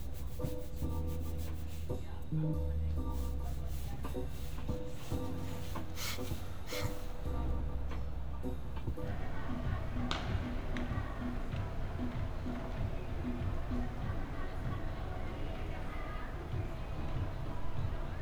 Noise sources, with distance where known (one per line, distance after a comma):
music from a fixed source